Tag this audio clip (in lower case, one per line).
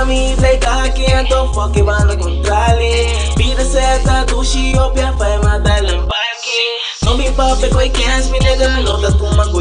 music